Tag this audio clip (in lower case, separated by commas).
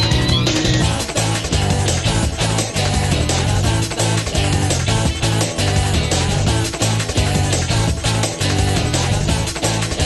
music